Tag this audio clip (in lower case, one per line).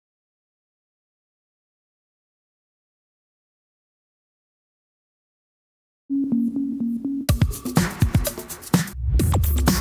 music